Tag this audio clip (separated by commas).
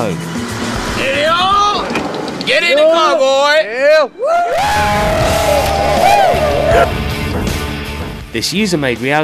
Music, Speech